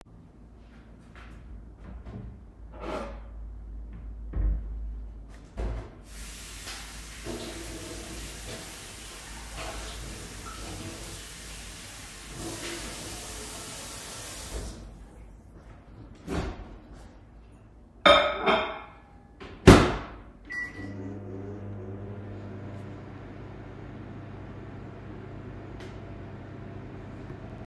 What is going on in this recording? I washed the dishes, left them in the drawer. Warmed the food in the microwave.